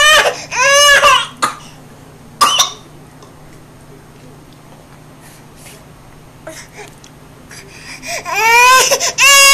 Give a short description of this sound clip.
A baby cries sharply then coughs and begins crying again